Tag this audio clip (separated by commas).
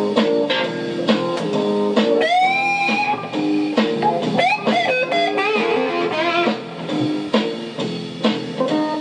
Musical instrument, Guitar, Music, Strum, Plucked string instrument